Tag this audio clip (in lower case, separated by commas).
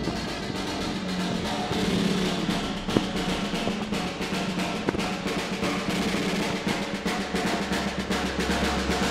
music, timpani